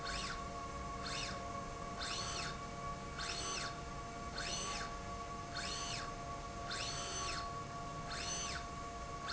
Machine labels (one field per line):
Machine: slide rail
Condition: normal